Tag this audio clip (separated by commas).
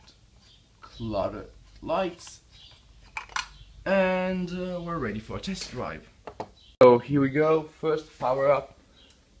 inside a small room, Speech, inside a large room or hall